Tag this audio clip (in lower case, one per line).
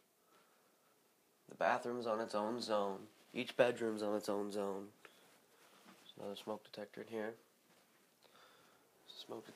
speech